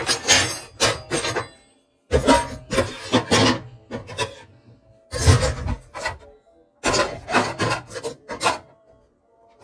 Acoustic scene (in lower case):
kitchen